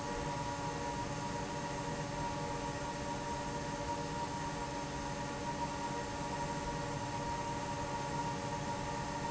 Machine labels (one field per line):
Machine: fan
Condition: normal